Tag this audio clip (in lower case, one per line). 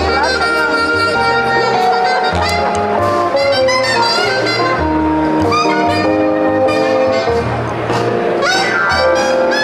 music
speech